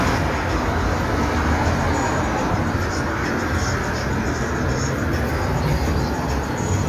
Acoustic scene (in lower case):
street